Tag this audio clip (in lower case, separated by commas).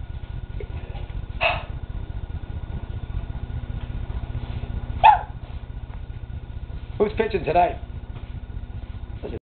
speech